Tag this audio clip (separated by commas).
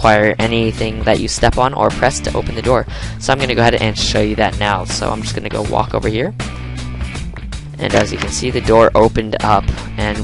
Speech, Music, Door